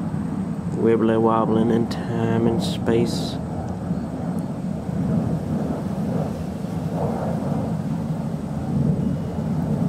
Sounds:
Speech

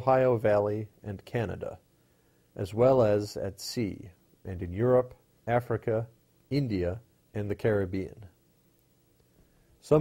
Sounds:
Speech

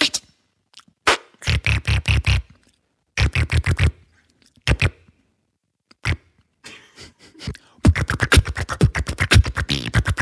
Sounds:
beat boxing

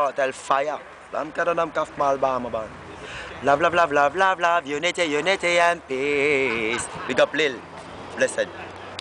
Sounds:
Speech

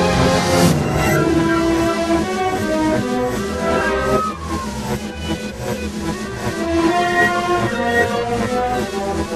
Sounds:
Soundtrack music, Music

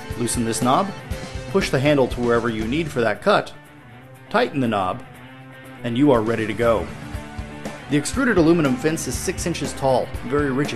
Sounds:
planing timber

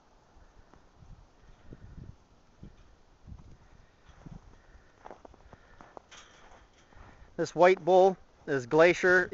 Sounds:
Speech

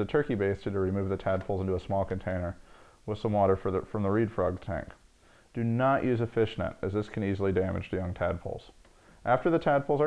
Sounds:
Speech

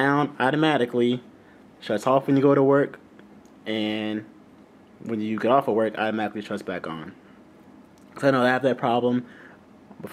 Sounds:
Speech

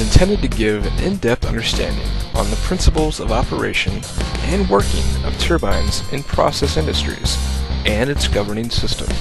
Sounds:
Music, Speech

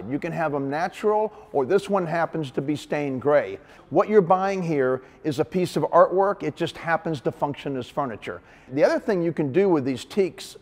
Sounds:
Speech

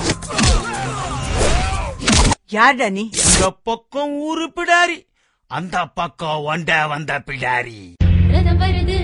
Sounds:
Music, Speech, Singing

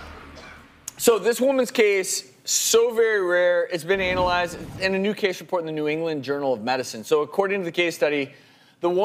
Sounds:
Speech

